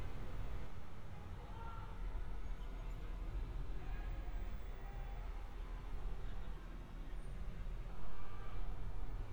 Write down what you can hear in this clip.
person or small group shouting